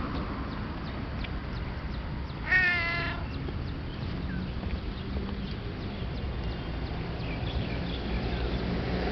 Cat meowing outdoors with birds chirping in the distance